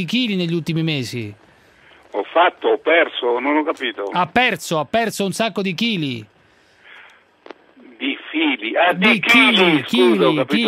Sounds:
Speech

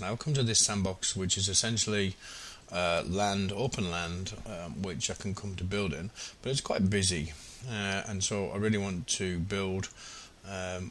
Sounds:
Speech

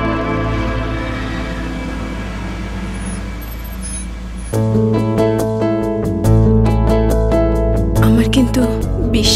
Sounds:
Vehicle, Music, Speech, Car

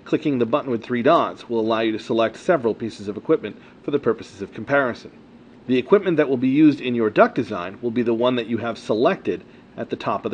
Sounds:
Speech

